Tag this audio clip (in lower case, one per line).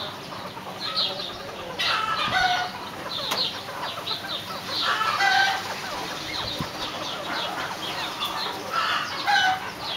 pheasant crowing